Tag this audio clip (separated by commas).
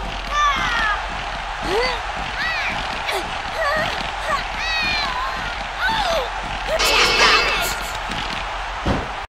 Speech